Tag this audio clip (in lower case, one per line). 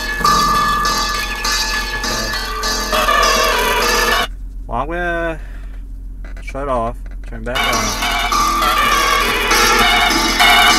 speech
music